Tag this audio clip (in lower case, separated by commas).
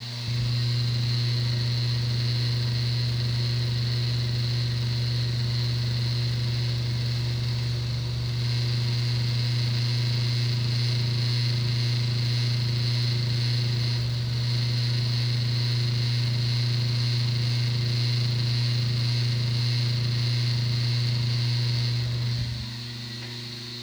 mechanical fan, mechanisms